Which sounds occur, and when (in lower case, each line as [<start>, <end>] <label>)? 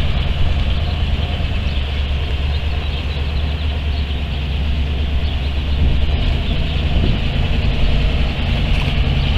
[0.00, 9.35] truck
[0.00, 9.35] wind
[0.53, 1.31] chirp
[1.59, 1.95] chirp
[2.44, 4.14] chirp
[5.12, 5.70] chirp
[5.73, 6.05] generic impact sounds
[6.07, 6.76] chirp
[6.96, 7.18] generic impact sounds
[8.68, 8.96] generic impact sounds
[9.15, 9.35] chirp